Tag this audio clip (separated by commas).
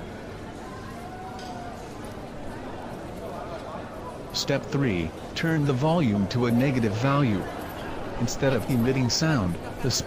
Speech